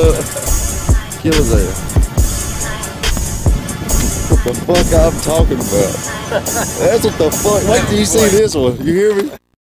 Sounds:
speech, music

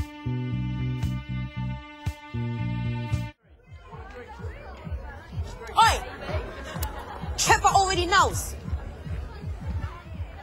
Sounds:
music, speech

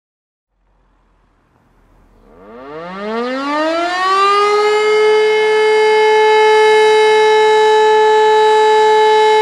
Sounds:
civil defense siren

